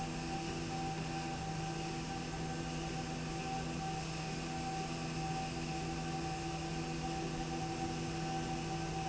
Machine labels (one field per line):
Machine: slide rail